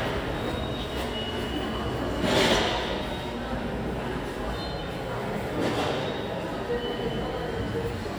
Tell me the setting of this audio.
subway station